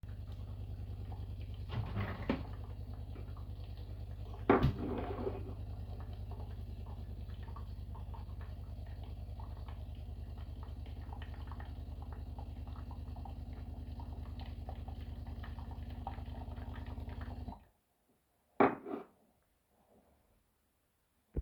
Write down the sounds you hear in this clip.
coffee machine, cutlery and dishes